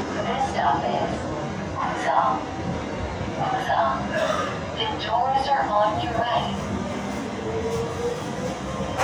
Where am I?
on a subway train